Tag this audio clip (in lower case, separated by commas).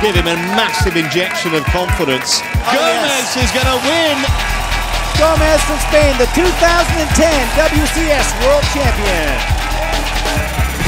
music, speech